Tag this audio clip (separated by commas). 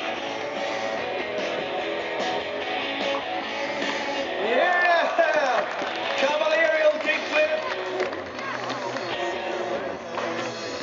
Speech, Music